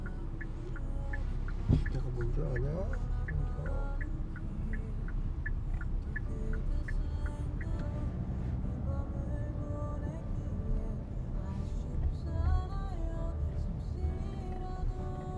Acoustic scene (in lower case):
car